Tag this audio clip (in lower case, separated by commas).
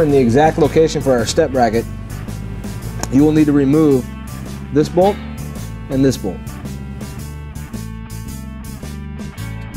speech, music